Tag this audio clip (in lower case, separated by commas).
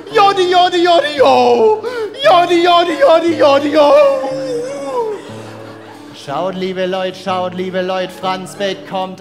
yodelling